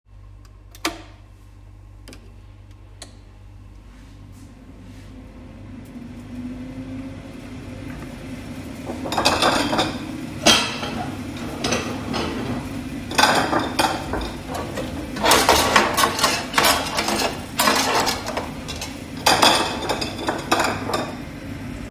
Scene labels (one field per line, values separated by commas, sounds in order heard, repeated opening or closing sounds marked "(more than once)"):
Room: kitchen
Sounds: microwave, cutlery and dishes